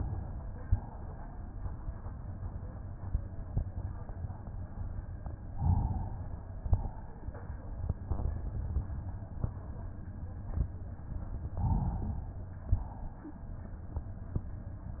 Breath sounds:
5.52-6.36 s: inhalation
6.53-7.29 s: exhalation
11.54-12.30 s: inhalation
12.64-13.40 s: exhalation

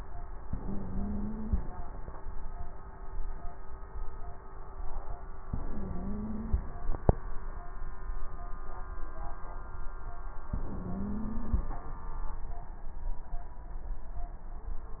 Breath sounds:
0.44-1.61 s: inhalation
0.44-1.61 s: wheeze
5.47-6.64 s: inhalation
5.47-6.64 s: wheeze
10.52-11.69 s: inhalation
10.52-11.69 s: wheeze

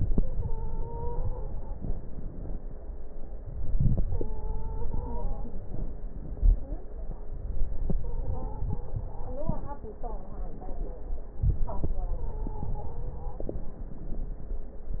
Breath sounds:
0.00-1.64 s: inhalation
0.13-1.76 s: stridor
1.67-2.76 s: exhalation
3.37-5.54 s: inhalation
4.06-5.55 s: stridor
5.55-7.00 s: exhalation
5.55-7.03 s: crackles
7.31-9.80 s: inhalation
7.80-9.11 s: stridor
9.80-11.36 s: exhalation
9.80-11.36 s: crackles
11.37-13.36 s: inhalation
11.86-13.56 s: stridor
13.37-15.00 s: exhalation

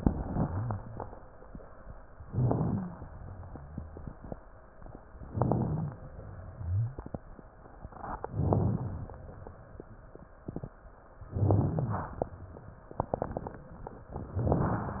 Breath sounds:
2.28-2.85 s: inhalation
2.28-2.85 s: rhonchi
5.28-5.94 s: inhalation
5.28-5.94 s: crackles
8.37-9.03 s: inhalation
8.37-9.03 s: crackles
11.33-12.12 s: inhalation
11.33-12.12 s: crackles
14.36-15.00 s: inhalation
14.36-15.00 s: crackles

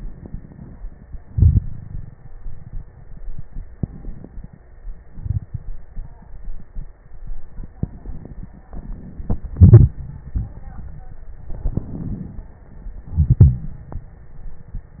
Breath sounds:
0.00-0.80 s: inhalation
1.27-2.31 s: exhalation
1.27-2.31 s: crackles
3.81-4.64 s: inhalation
5.08-5.90 s: exhalation
5.08-5.90 s: crackles
11.51-12.55 s: inhalation
11.51-12.55 s: crackles
13.01-13.90 s: exhalation

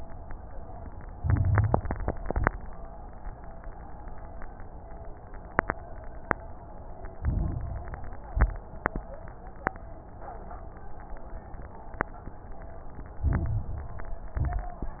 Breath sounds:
1.12-2.18 s: inhalation
1.12-2.18 s: crackles
2.22-2.56 s: exhalation
2.22-2.56 s: crackles
7.18-8.30 s: inhalation
7.18-8.30 s: crackles
8.30-8.64 s: exhalation
8.30-8.64 s: crackles
13.21-14.33 s: inhalation
13.21-14.33 s: crackles
14.35-14.84 s: exhalation
14.35-14.84 s: crackles

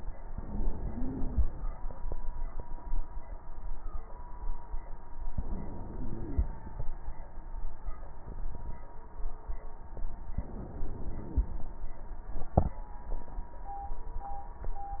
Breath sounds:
0.26-1.49 s: inhalation
0.26-1.49 s: wheeze
5.34-6.57 s: inhalation
5.34-6.57 s: wheeze
10.36-11.58 s: inhalation
10.36-11.58 s: wheeze

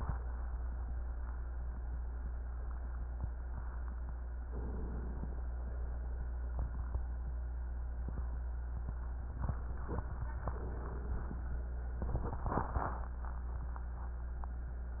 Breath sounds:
4.52-5.58 s: inhalation
5.56-6.49 s: exhalation
10.43-11.68 s: inhalation

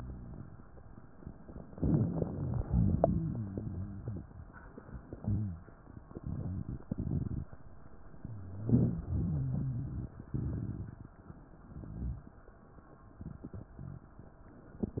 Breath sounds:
1.71-2.60 s: inhalation
1.71-2.60 s: crackles
2.71-3.61 s: exhalation
2.71-4.23 s: rhonchi
5.07-5.62 s: rhonchi
8.18-10.21 s: rhonchi

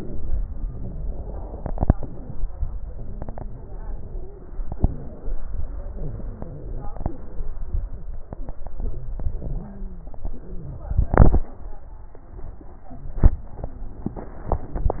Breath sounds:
0.00-0.38 s: wheeze
0.00-0.39 s: exhalation
0.44-1.47 s: wheeze
0.46-1.47 s: inhalation
1.50-2.02 s: exhalation
1.51-2.00 s: crackles
2.86-4.24 s: wheeze
2.88-4.26 s: inhalation
4.67-5.37 s: wheeze
4.68-5.37 s: exhalation
5.63-6.90 s: wheeze
5.63-6.92 s: inhalation
6.92-7.59 s: wheeze
6.96-7.57 s: exhalation
9.38-10.07 s: inhalation
9.38-10.07 s: wheeze
10.24-11.09 s: exhalation
10.24-11.09 s: wheeze

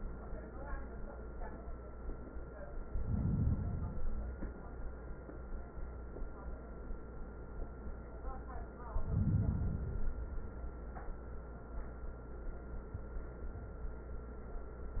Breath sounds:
2.83-3.95 s: inhalation
3.94-4.89 s: exhalation
8.84-9.87 s: inhalation
9.90-10.87 s: exhalation

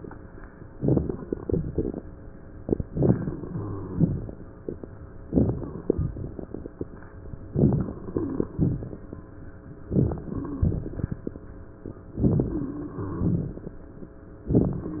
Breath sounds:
0.72-1.42 s: inhalation
0.72-1.42 s: crackles
1.43-2.12 s: exhalation
1.43-2.12 s: crackles
2.81-3.95 s: inhalation
3.48-4.35 s: wheeze
3.92-4.46 s: exhalation
5.26-5.88 s: inhalation
5.26-5.88 s: crackles
8.13-8.52 s: wheeze
9.89-10.65 s: inhalation
10.30-10.74 s: wheeze
10.63-11.58 s: exhalation
12.12-12.92 s: inhalation
12.48-12.94 s: wheeze
12.91-13.91 s: exhalation

